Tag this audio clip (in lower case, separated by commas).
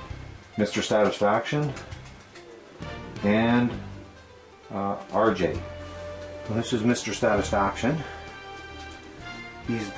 speech, inside a small room, music